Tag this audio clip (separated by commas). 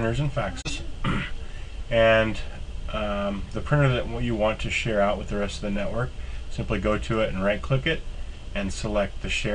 Speech